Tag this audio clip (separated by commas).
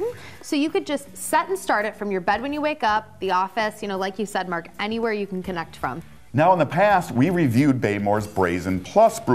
Music, Speech